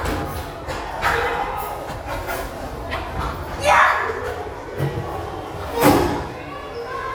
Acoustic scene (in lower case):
restaurant